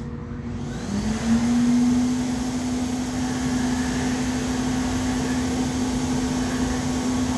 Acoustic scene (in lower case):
restroom